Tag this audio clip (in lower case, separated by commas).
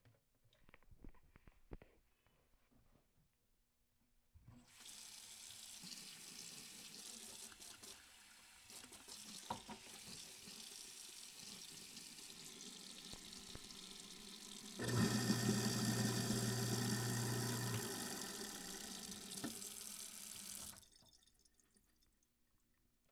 sink (filling or washing), home sounds